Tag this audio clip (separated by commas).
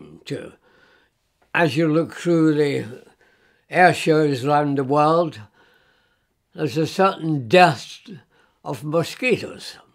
Speech